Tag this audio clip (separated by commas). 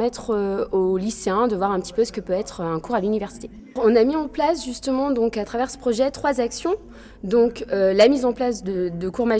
Speech